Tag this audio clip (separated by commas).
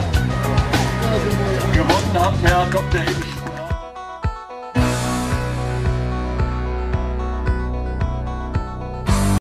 Music, Speech